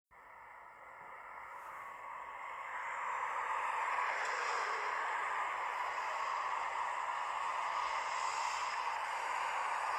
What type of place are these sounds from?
street